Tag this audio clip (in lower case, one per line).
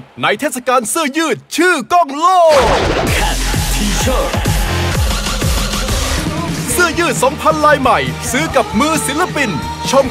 music
speech